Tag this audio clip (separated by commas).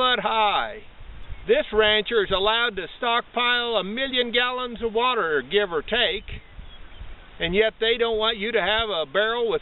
Speech